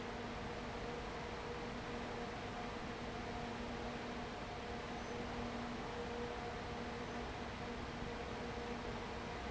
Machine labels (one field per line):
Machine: fan